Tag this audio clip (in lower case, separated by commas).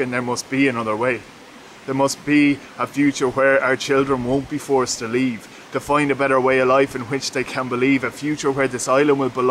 speech